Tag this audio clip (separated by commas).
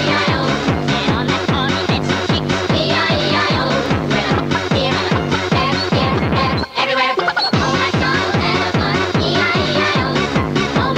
Electronic music, Techno, Music